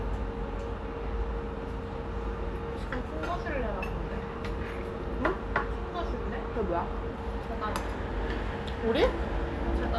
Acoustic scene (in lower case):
restaurant